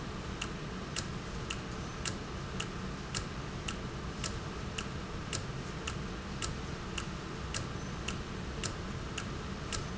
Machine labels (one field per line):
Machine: valve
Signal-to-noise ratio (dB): -6 dB